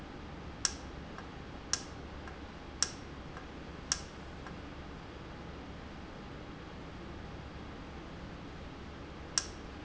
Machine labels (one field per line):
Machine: valve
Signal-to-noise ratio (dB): 0 dB